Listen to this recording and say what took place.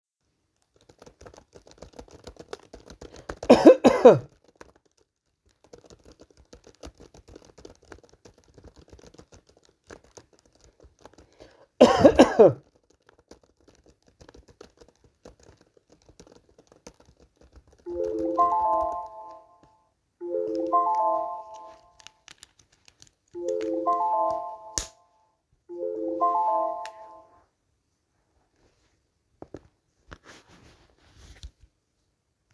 I typed on my keyboard and cough twice when my phone started to ring. I opened the case of my ear plugs, put them to my ears and answered the call.